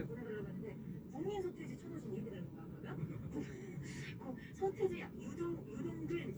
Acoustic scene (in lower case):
car